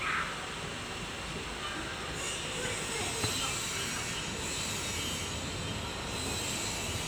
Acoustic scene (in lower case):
residential area